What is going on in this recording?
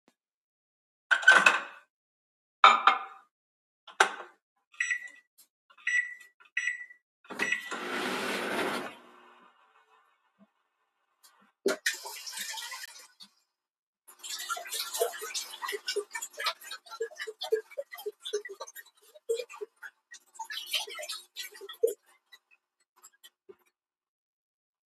opened microwave added food closed the door and started the device. meanwhile the tap was switched in and running water sounds were created.